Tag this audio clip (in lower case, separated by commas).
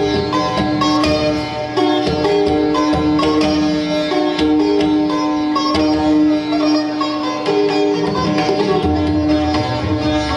music, sitar